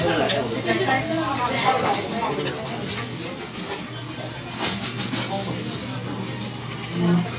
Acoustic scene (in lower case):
crowded indoor space